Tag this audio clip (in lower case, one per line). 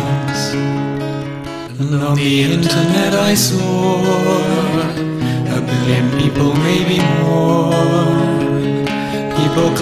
music